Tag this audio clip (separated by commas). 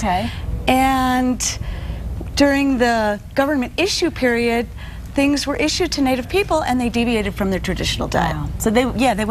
Female speech